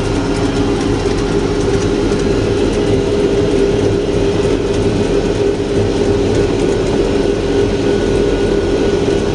A loud vehicle engine